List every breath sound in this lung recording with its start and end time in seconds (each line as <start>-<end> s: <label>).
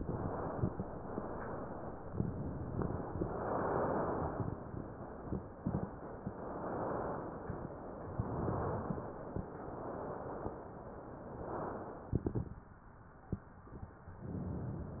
0.00-0.68 s: inhalation
0.99-1.91 s: inhalation
3.16-4.39 s: inhalation
6.30-7.34 s: inhalation
8.12-9.15 s: inhalation
9.49-10.53 s: inhalation
11.16-12.20 s: inhalation
14.23-15.00 s: inhalation